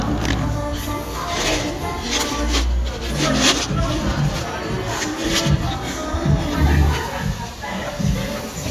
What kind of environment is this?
cafe